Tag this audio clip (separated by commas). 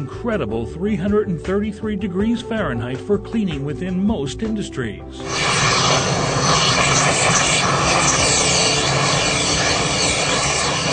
Speech, Music, Steam